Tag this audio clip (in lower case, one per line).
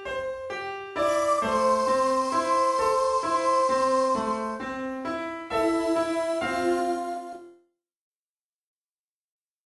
music